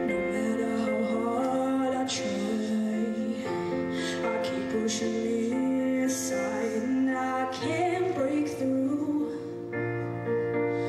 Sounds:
Female singing, Music

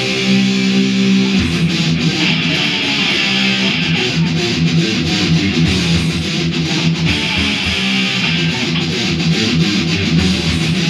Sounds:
Music, Musical instrument, Guitar, Strum

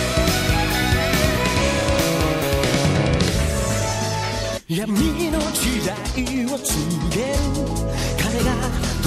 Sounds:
Music

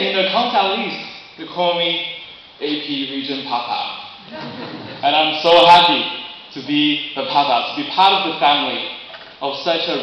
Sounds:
man speaking, Speech

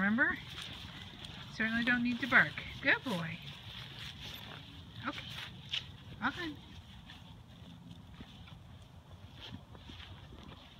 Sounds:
Speech

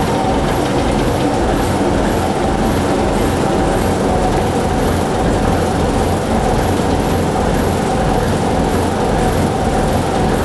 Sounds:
Vehicle

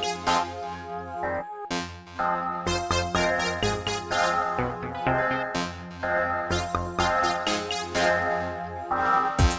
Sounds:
Music

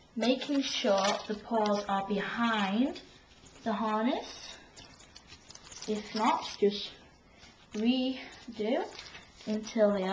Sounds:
Speech

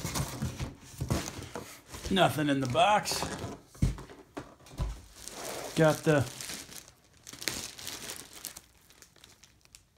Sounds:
inside a small room, Speech, crinkling

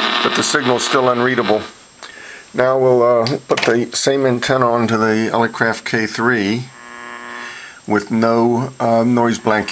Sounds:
Radio, Speech, Noise

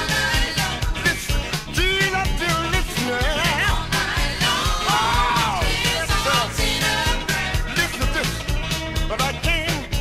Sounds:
Musical instrument, Music

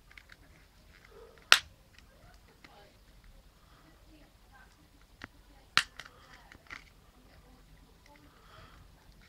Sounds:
Speech

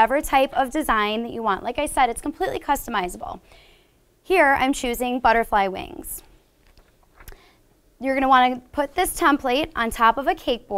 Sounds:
Speech

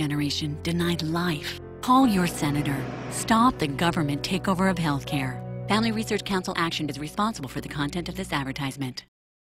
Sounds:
Music, Speech

